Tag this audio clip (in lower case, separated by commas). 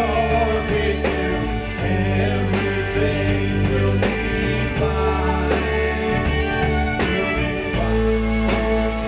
music